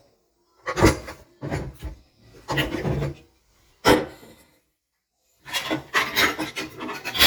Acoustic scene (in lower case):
kitchen